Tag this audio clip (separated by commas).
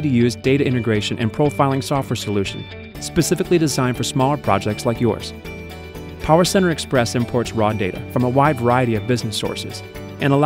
Speech, Music